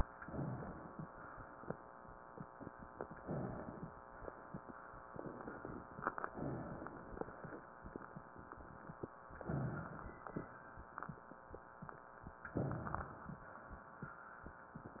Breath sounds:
Inhalation: 0.16-1.18 s, 3.14-3.93 s, 6.28-7.07 s, 9.35-10.13 s, 12.52-13.49 s

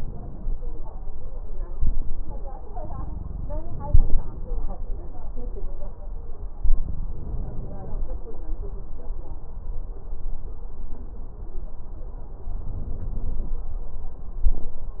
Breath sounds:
Inhalation: 7.12-8.18 s, 12.56-13.63 s

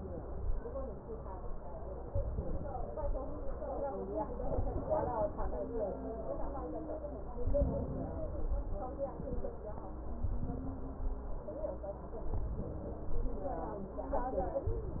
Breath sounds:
Inhalation: 2.07-3.17 s, 4.46-5.57 s, 7.41-8.51 s, 10.26-11.36 s, 12.29-13.39 s, 14.69-15.00 s

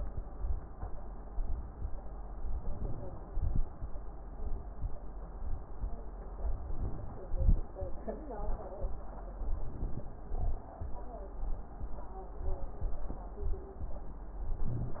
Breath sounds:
Inhalation: 2.40-3.19 s, 6.35-7.24 s, 9.40-10.07 s, 14.48-15.00 s
Exhalation: 3.21-3.68 s, 7.25-7.66 s, 10.29-10.66 s

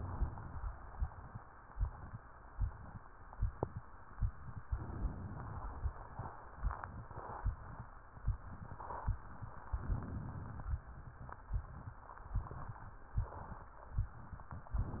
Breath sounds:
Inhalation: 4.67-5.90 s, 9.71-10.79 s

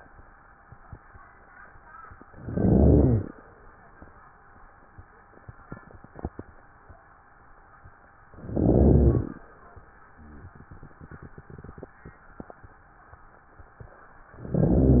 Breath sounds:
Inhalation: 2.35-3.34 s, 8.41-9.39 s, 14.36-15.00 s
Crackles: 2.35-3.34 s, 8.41-9.39 s, 14.36-15.00 s

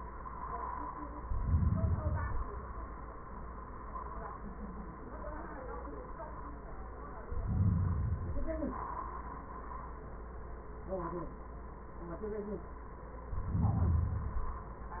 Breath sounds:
Inhalation: 1.17-2.67 s, 7.22-8.72 s, 13.25-14.68 s
Exhalation: 8.72-10.14 s

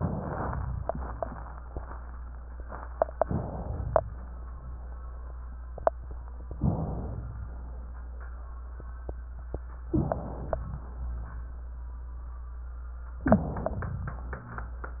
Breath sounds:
Inhalation: 0.00-0.82 s, 3.19-4.00 s, 6.60-7.42 s, 9.92-10.74 s, 13.24-14.06 s

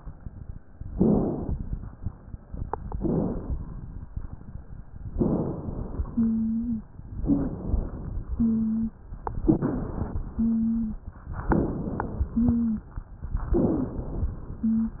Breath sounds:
Inhalation: 0.89-1.60 s, 2.96-3.66 s, 5.18-6.02 s, 7.23-8.11 s, 9.47-10.22 s, 11.50-12.25 s, 13.55-14.32 s
Wheeze: 6.09-6.89 s, 8.35-8.98 s, 10.38-11.01 s, 12.33-12.96 s, 13.55-13.99 s, 14.67-15.00 s

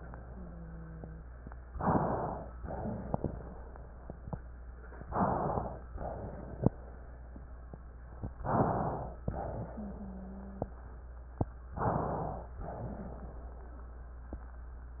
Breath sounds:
Inhalation: 1.70-2.50 s, 5.04-5.80 s, 8.40-9.16 s, 11.74-12.56 s
Exhalation: 2.58-3.38 s, 5.94-6.70 s, 9.28-10.80 s, 12.60-13.66 s
Wheeze: 0.24-1.26 s, 9.72-10.80 s

